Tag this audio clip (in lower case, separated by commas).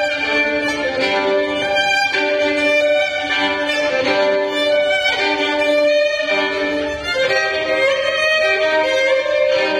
violin, musical instrument, music